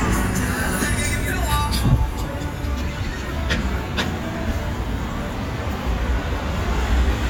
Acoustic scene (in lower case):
street